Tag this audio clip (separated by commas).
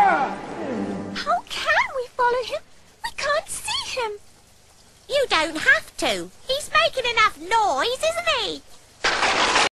Speech